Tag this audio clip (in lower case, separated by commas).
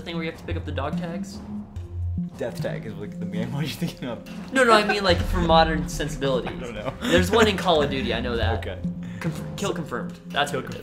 speech, music